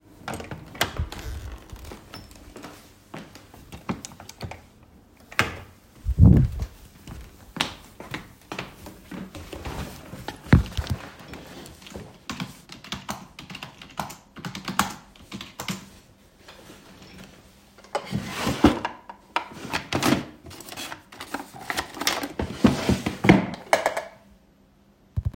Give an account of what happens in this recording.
I opened the door to my office and walked right towards my desk. I sat down on my chair and started typing on my keyboard. I opened my desks drawer and looked for something and then I closed the drawer again.